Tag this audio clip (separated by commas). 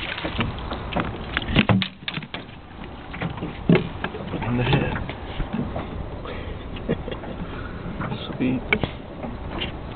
Speech